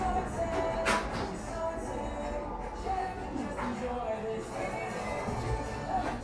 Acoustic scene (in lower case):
cafe